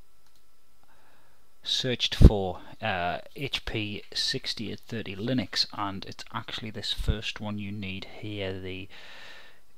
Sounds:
Speech

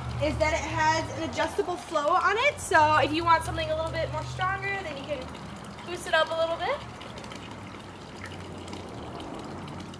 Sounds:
Water tap, Water

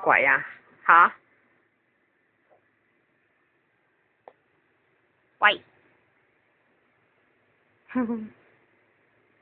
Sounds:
Speech

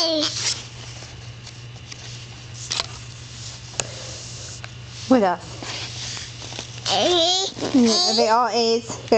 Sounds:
Speech

